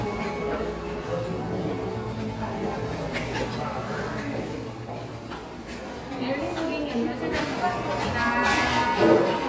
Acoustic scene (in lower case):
crowded indoor space